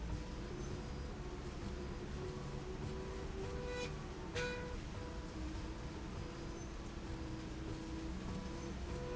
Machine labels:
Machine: slide rail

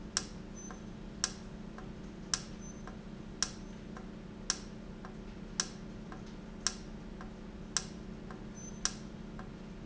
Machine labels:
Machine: valve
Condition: normal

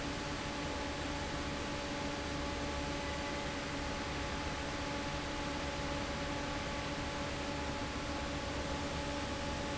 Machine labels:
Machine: fan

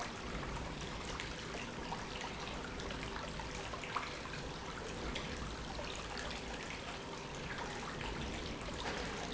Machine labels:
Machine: pump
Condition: normal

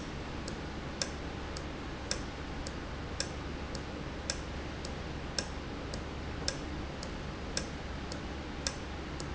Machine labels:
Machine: valve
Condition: normal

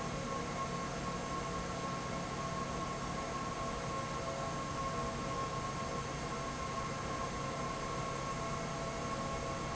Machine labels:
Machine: fan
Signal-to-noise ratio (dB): -6 dB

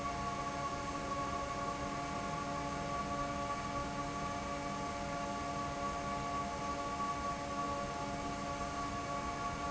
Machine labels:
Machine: fan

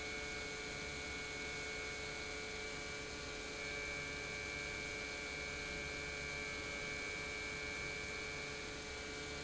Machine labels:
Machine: pump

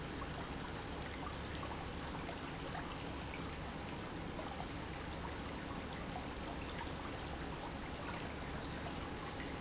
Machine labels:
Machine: pump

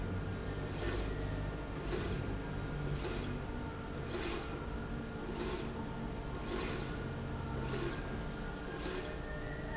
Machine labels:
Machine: slide rail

